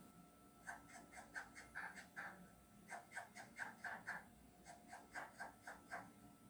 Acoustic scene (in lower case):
kitchen